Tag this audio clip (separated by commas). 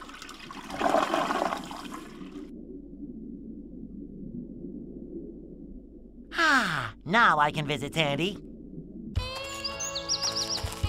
Liquid, Speech, Music